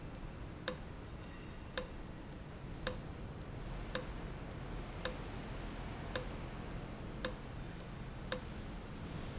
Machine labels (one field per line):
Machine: valve